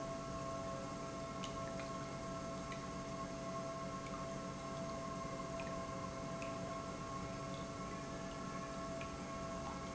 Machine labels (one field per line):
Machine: pump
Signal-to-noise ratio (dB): 0 dB